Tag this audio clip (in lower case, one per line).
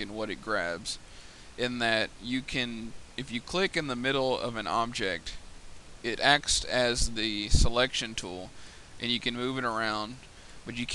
speech